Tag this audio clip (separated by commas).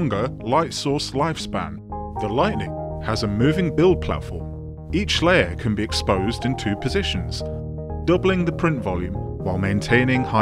Speech, Music